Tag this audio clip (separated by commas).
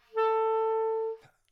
Musical instrument, Wind instrument, Music